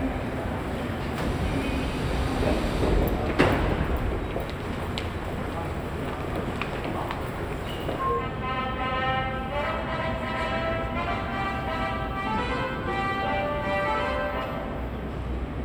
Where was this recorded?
in a subway station